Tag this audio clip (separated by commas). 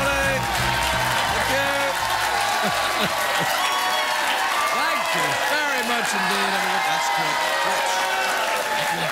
Speech, monologue